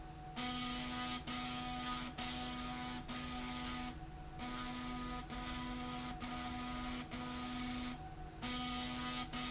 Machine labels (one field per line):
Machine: slide rail